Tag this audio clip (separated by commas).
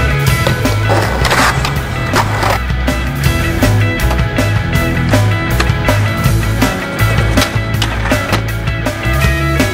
Music, Skateboard